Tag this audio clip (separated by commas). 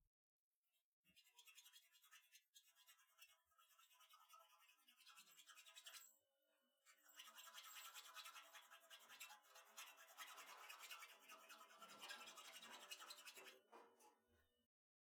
Tools